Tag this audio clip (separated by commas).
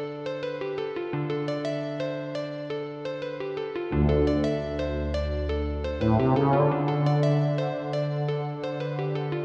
Music